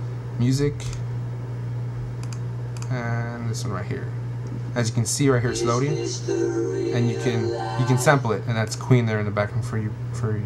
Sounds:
inside a small room, Speech

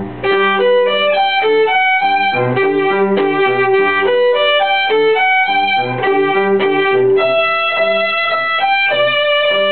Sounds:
Music, Musical instrument, Violin

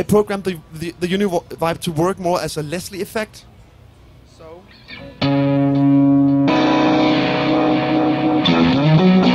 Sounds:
Music, Bass guitar, Heavy metal, Guitar, Musical instrument, Speech, Plucked string instrument, Rock music, Effects unit

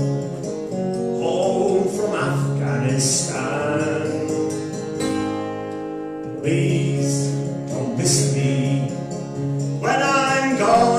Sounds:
Guitar, Plucked string instrument, Musical instrument, Singing, Music, Strum

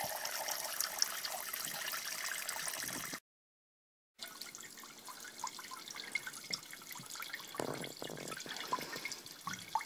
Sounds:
Water, Stream

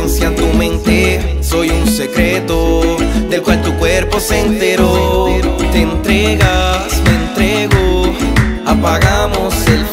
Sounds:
Music

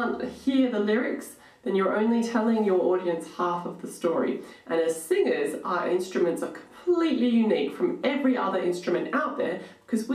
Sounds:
Speech

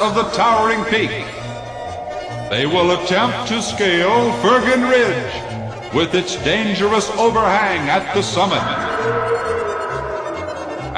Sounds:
Speech, Music

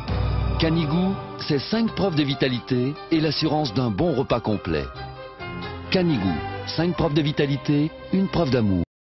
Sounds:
Music, Speech

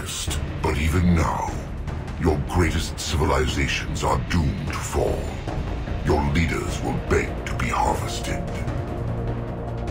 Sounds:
Music

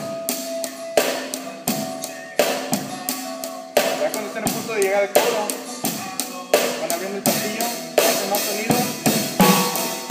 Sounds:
Musical instrument, Drum kit, Cymbal, Drum, Speech, Music

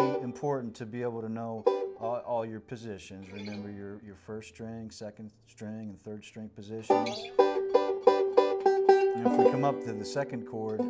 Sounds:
Mandolin, Music, Speech

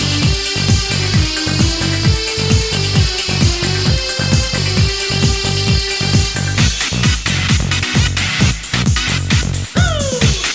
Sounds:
Exciting music, Music

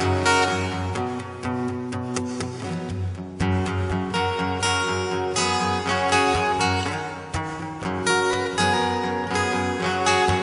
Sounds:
Acoustic guitar, Plucked string instrument, Guitar, Strum, Music, Musical instrument

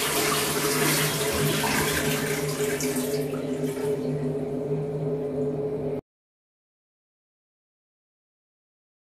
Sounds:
toilet flushing

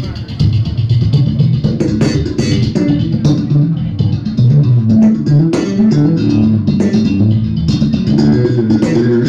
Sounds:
Music, Bass guitar

